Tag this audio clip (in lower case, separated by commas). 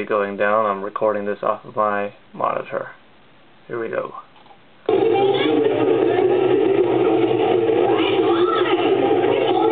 speech